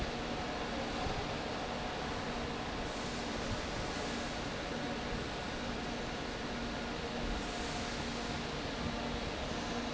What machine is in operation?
fan